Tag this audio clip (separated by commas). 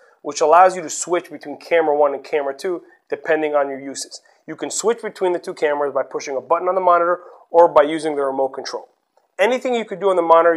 Speech